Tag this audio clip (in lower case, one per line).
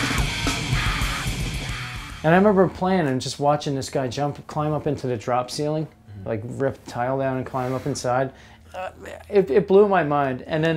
speech
music